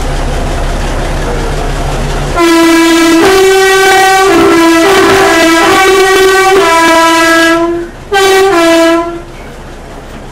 A train is blowing its horn as it runs on the track making a cricket clack sound